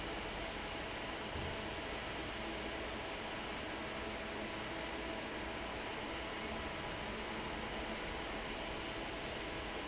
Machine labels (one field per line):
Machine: fan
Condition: normal